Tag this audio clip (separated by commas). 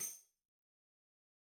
Music, Musical instrument, Tambourine, Percussion